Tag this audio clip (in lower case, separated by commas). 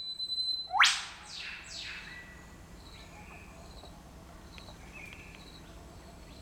animal, bird, wild animals